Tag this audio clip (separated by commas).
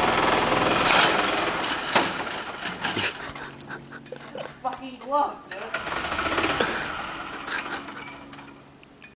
Vehicle, Speech